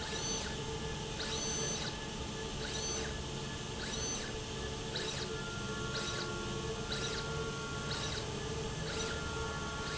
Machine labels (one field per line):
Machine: slide rail